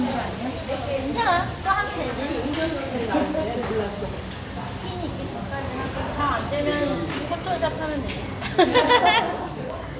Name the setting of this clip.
restaurant